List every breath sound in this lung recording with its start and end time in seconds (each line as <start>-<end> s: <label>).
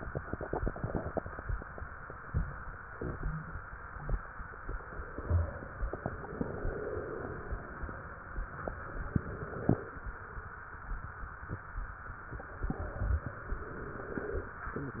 4.80-5.93 s: exhalation
6.22-7.81 s: inhalation
8.78-10.05 s: inhalation
13.45-14.57 s: inhalation